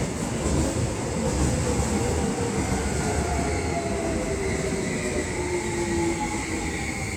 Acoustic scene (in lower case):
subway station